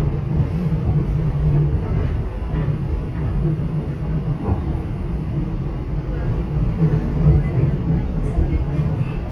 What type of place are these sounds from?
subway train